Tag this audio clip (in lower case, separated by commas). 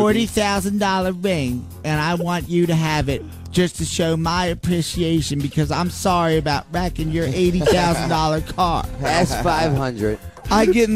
radio, speech, music